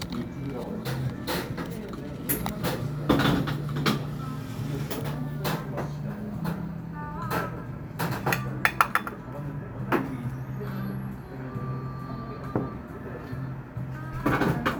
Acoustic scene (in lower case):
cafe